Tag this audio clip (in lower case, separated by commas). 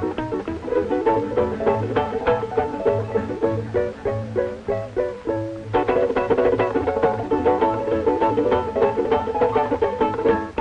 ukulele, music, inside a large room or hall